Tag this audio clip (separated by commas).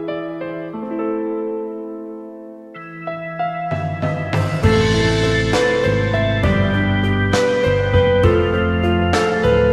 Music